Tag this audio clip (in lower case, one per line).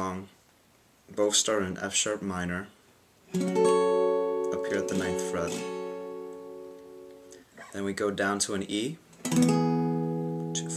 acoustic guitar
plucked string instrument
musical instrument
music
strum
guitar
speech